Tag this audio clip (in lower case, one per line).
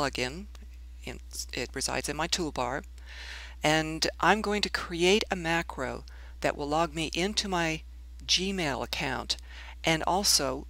speech